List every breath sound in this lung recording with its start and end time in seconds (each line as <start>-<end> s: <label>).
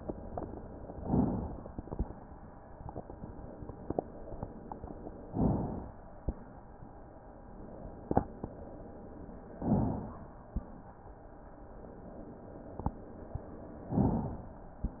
0.92-1.83 s: inhalation
5.25-6.16 s: inhalation
9.50-10.41 s: inhalation
13.87-14.78 s: inhalation